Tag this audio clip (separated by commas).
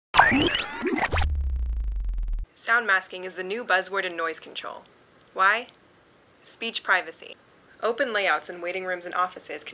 Music, Speech